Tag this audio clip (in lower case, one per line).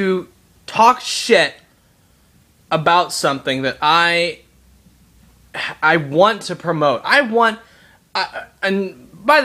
speech